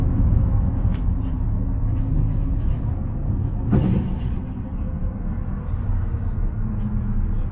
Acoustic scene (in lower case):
bus